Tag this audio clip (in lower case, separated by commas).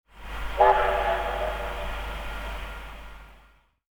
vehicle, train, rail transport